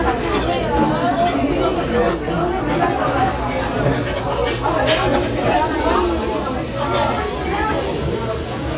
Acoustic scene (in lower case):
restaurant